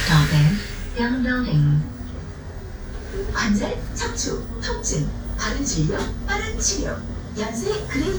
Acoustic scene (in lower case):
bus